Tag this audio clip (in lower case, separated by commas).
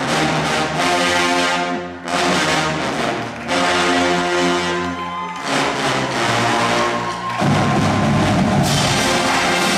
music, clapping, cheering